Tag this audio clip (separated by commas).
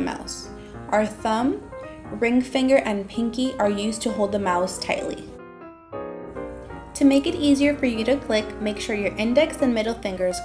Music, Speech